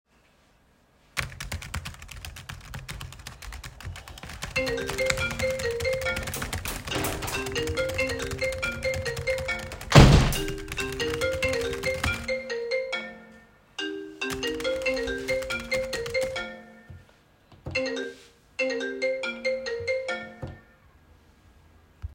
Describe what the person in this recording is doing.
I was typing on the keyboard when a phone call arrived. I continued typing and, while the call was still active, I opened and closed the window. Then I continued typing and ended the call.